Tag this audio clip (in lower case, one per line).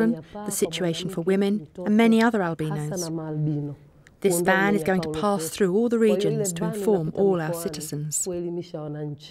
speech